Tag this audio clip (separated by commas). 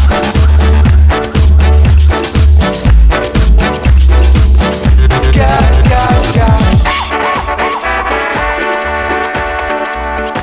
Ska, Music, Electronic music, Reggae, House music